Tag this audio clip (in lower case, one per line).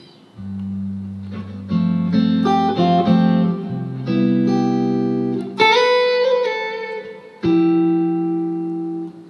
musical instrument
jazz
guitar
music
plucked string instrument
electric guitar